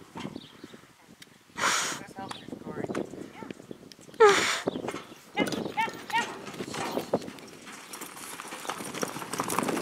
Wind blows and horses neigh followed by speaking and galloping horses